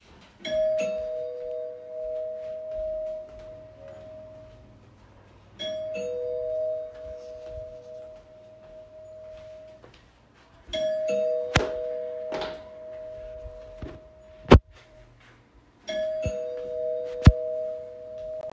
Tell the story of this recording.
I rang the door bell and walked away causing some rustling of my clothes as I moved. The sound of the bell ringing was clear and distinct in the recording.